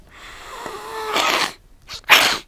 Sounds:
respiratory sounds

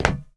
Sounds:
footsteps

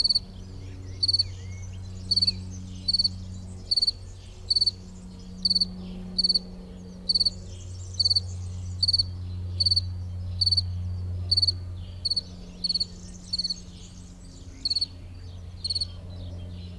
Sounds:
animal, wild animals, insect, cricket

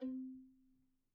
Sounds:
musical instrument, music, bowed string instrument

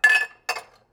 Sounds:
glass, chink, dishes, pots and pans, home sounds

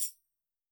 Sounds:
tambourine, percussion, music, musical instrument

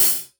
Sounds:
hi-hat, cymbal, music, percussion, musical instrument

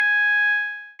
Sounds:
music, musical instrument, keyboard (musical), piano

